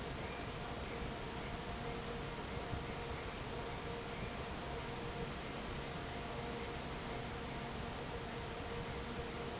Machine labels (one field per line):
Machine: fan